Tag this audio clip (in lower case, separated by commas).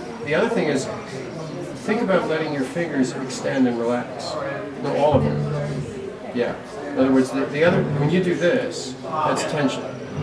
pizzicato, music, speech, musical instrument